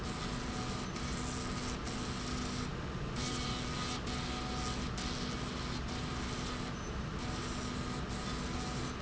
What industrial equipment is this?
slide rail